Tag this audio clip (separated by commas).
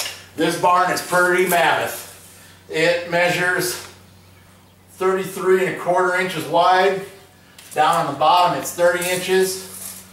Speech